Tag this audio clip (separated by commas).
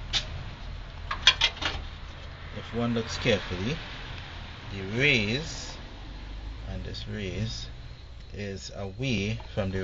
Speech